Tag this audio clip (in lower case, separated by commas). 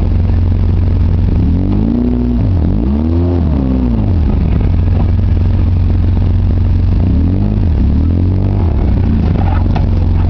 car, vehicle, outside, rural or natural